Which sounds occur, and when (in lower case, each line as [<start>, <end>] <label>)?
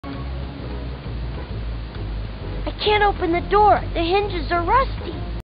[0.00, 5.39] background noise
[0.00, 5.39] music
[0.09, 0.14] clicking
[1.91, 1.95] clicking
[2.64, 3.81] kid speaking
[3.66, 3.69] clicking
[3.93, 5.11] kid speaking